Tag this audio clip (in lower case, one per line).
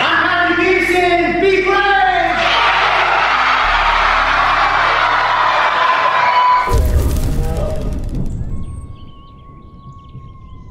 people cheering